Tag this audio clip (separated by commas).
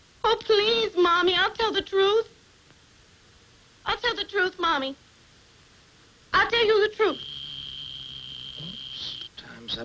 Speech, inside a small room